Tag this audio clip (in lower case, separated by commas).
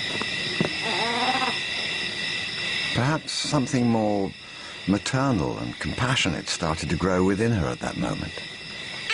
speech, roaring cats, animal, wild animals